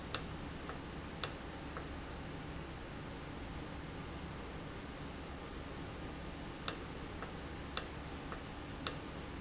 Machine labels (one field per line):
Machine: valve